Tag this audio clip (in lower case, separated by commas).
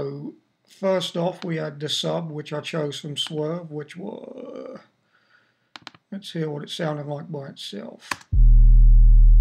music, speech